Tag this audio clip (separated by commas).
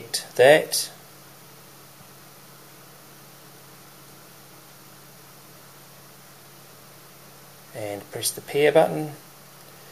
inside a small room, Speech